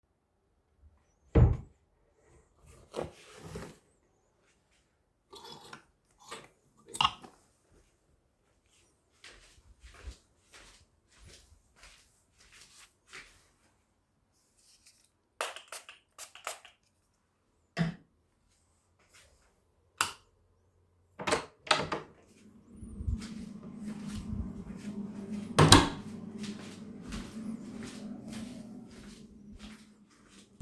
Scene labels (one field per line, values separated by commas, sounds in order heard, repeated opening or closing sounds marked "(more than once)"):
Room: bedroom, hallway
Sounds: wardrobe or drawer, footsteps, light switch, door (more than once)